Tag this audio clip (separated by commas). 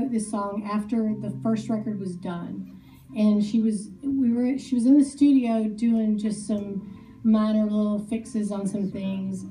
Speech, Music